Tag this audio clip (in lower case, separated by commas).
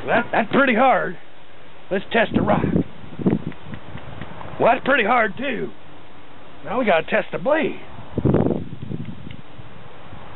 speech, outside, urban or man-made